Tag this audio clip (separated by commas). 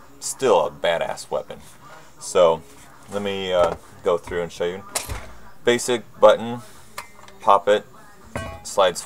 Speech